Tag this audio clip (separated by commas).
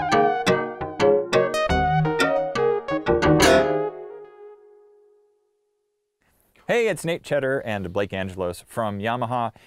Music, Speech, Sampler